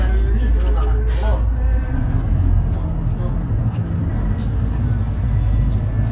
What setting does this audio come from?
bus